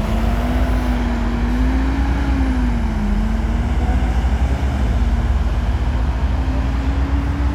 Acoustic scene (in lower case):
street